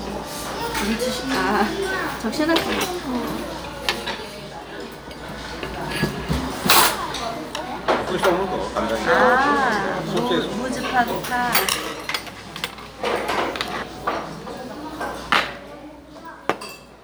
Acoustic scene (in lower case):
restaurant